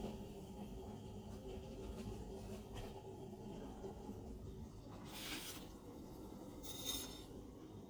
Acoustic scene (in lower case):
kitchen